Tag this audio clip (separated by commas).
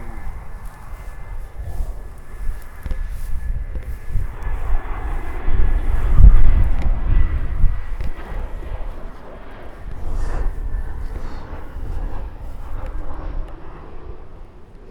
Wind